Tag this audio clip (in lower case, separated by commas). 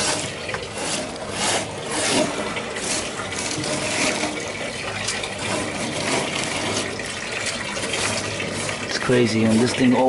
faucet, water